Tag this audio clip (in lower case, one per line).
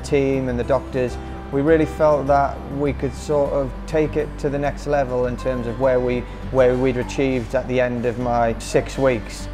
music
speech